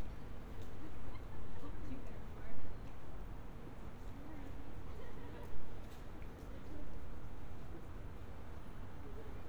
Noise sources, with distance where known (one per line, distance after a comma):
background noise